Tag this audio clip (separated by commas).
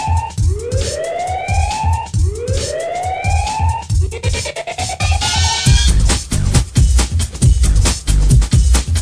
Music